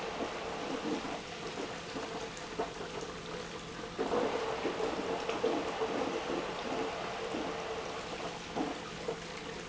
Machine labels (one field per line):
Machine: pump